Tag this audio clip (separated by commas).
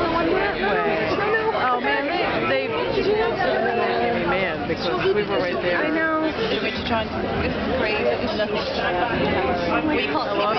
Speech